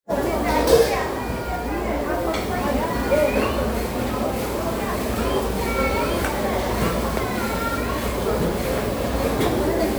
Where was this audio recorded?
in a restaurant